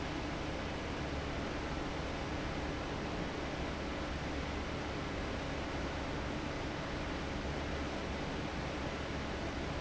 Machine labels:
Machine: fan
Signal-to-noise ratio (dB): -6 dB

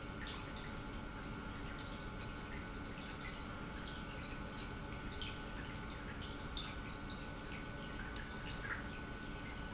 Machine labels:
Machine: pump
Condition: normal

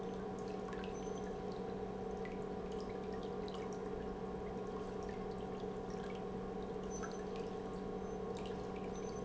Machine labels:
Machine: pump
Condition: normal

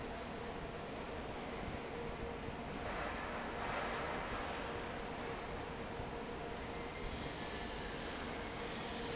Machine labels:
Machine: fan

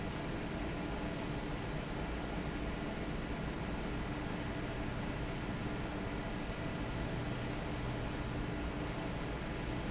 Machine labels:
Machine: fan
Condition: normal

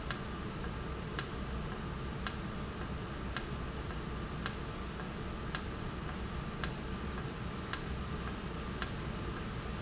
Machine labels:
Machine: valve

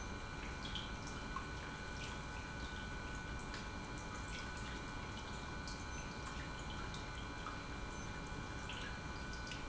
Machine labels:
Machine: pump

